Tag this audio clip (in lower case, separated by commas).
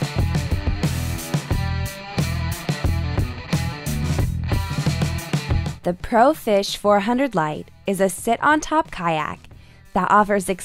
speech, music